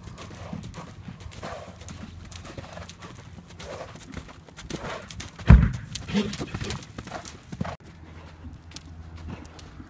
Horse clopping